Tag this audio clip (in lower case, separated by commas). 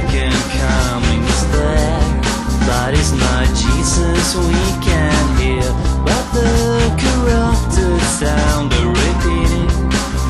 independent music, music, maraca